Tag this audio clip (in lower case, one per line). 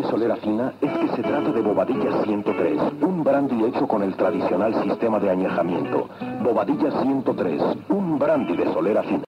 radio
speech
music